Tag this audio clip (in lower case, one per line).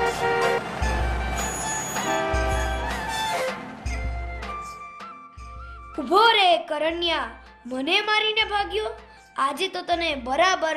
music
speech